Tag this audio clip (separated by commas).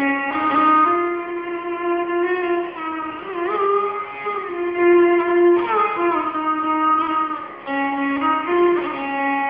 fiddle, Music, Musical instrument